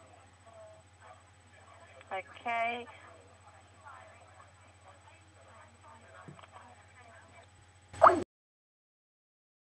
A woman speaking and a beeping noise